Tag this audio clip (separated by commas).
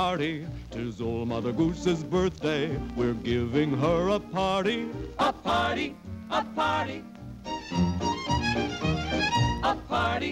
Music